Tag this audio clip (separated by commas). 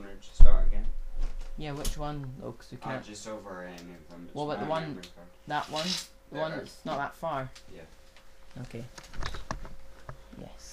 Speech